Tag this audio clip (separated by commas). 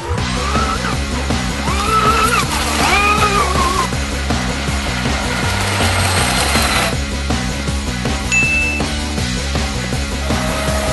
Boat, speedboat